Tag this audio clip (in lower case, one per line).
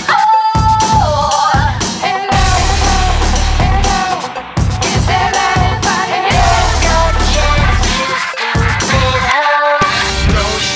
music
static